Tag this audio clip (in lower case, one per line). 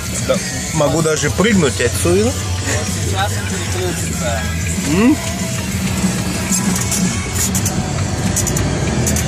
music
speech